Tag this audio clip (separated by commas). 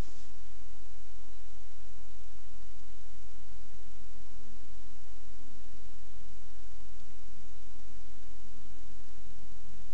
White noise